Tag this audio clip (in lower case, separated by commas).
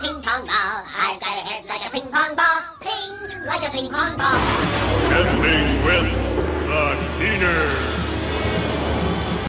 music, speech